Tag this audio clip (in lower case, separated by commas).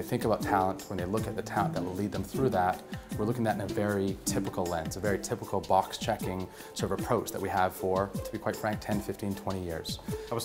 speech, music